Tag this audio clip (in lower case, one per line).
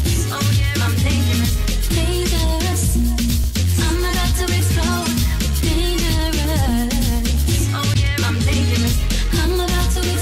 electronic music
house music
music
funk